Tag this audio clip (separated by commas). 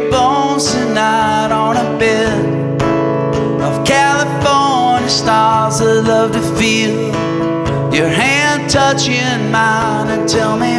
Music